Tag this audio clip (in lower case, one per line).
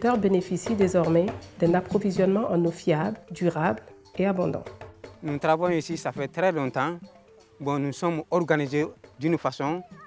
music
speech